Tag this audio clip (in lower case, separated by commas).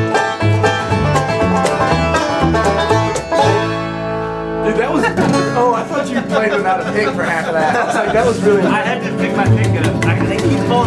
banjo, speech, plucked string instrument, bluegrass, musical instrument, music